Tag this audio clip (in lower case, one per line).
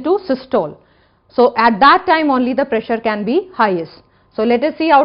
speech